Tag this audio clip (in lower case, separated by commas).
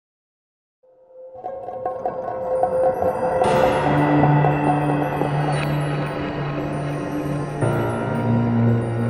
music